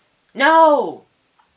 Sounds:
Speech, Human voice

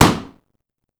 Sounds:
Explosion

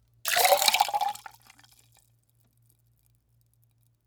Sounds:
Liquid

